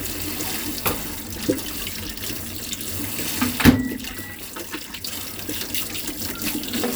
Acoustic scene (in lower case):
kitchen